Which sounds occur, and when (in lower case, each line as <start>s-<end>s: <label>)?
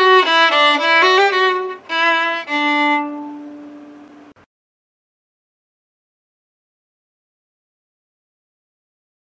0.0s-4.3s: music
0.0s-4.4s: background noise